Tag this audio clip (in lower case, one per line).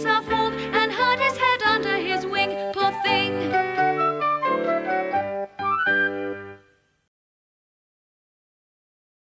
music